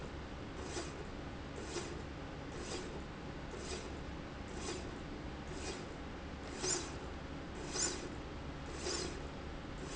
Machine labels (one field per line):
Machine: slide rail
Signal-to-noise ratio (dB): 0 dB